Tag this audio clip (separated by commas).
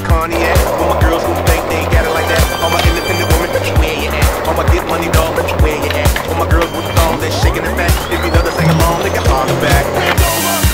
Music, Skateboard